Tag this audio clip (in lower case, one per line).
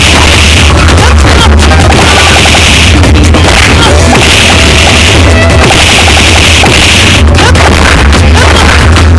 music